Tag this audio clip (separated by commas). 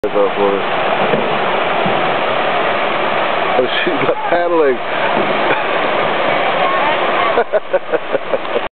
Speech